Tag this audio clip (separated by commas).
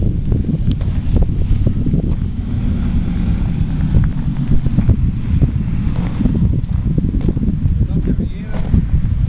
Speech